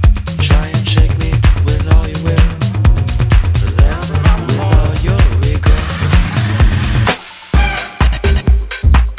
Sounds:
Music

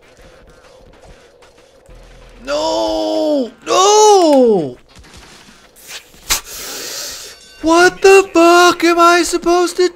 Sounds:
Speech

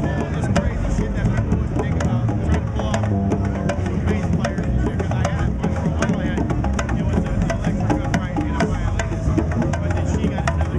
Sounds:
Jazz, Blues, Music, Speech

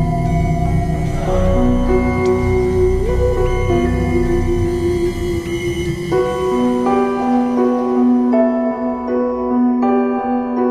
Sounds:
Music

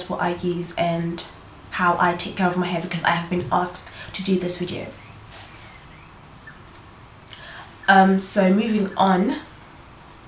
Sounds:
Speech

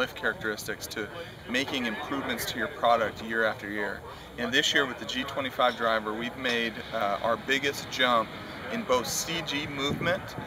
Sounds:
Speech

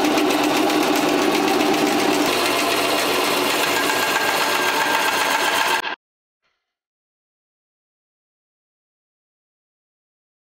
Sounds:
Music, inside a small room

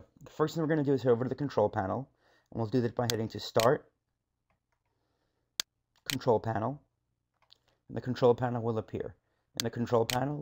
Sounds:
Speech

